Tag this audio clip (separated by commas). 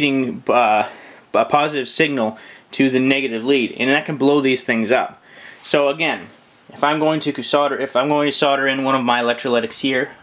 inside a small room, Speech